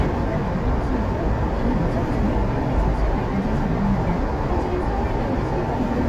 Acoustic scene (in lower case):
car